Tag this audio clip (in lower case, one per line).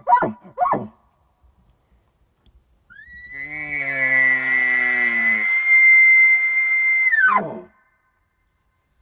elk bugling